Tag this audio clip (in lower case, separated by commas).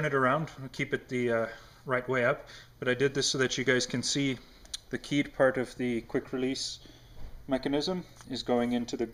speech